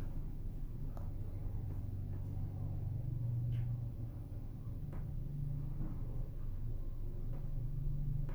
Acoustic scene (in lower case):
elevator